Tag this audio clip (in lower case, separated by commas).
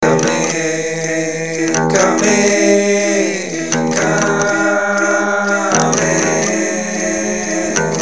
musical instrument, acoustic guitar, guitar, human voice, music, plucked string instrument